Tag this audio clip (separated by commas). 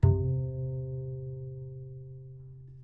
Musical instrument, Music, Bowed string instrument